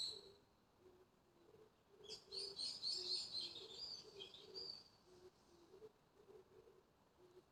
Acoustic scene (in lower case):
park